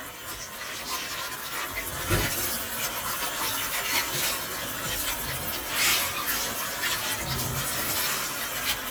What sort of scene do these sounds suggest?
kitchen